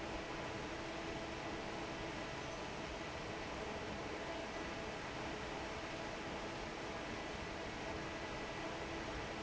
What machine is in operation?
fan